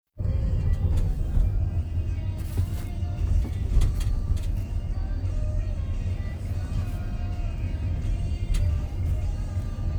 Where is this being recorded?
in a car